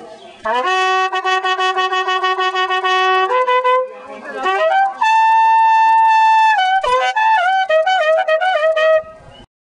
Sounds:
traditional music
music
speech

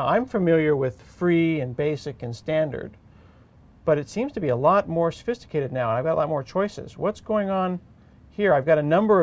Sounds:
speech

